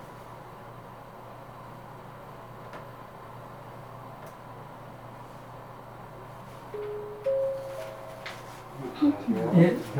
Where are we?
in an elevator